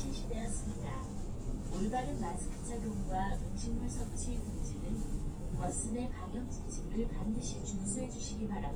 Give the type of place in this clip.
bus